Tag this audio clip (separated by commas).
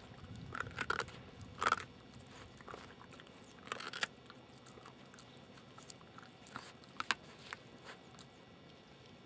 mastication